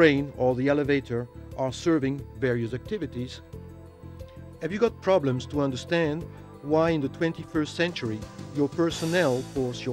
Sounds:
Speech, Music

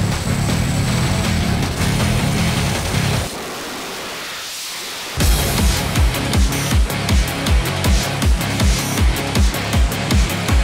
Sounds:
Music, Car, Vehicle

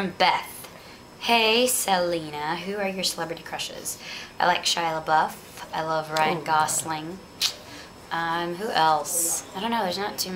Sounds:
Speech

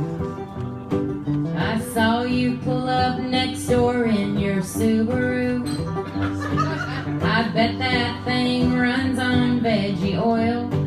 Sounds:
Country, Music

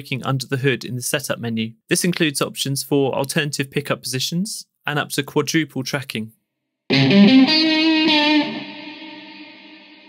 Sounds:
Guitar, Musical instrument, Speech, Music, Electric guitar, Piano

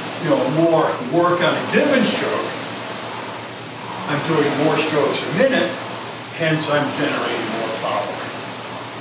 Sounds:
Speech

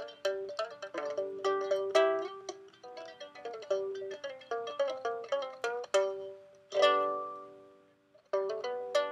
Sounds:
Music, Zither

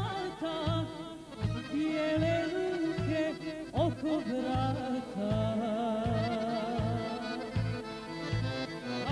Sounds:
Folk music, Accordion, Musical instrument, Music

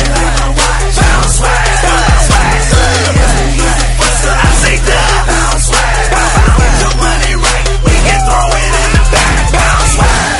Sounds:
Pop music, Music

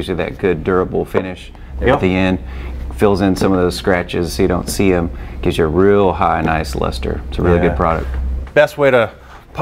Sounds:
Speech

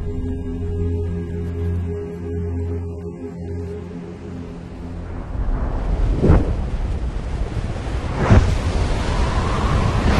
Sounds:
Music, Speech

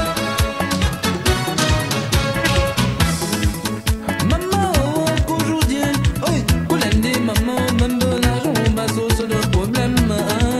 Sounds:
Music of Africa, Music

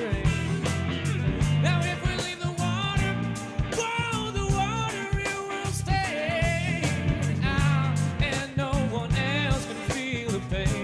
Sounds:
Funk, Music, Jazz, Pop music

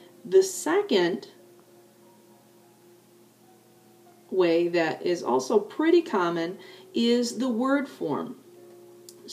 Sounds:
Speech

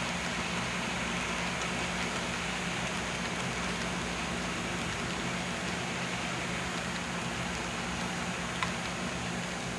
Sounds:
Train, Rail transport, Railroad car

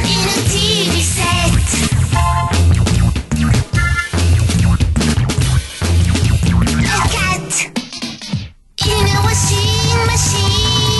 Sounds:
Music

